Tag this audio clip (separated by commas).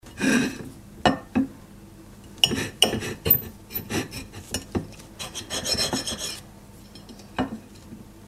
Domestic sounds